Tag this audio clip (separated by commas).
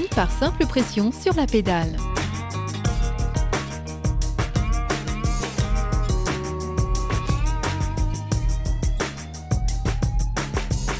Speech, Music